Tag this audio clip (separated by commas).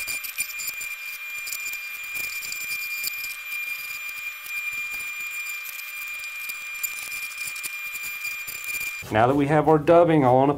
Speech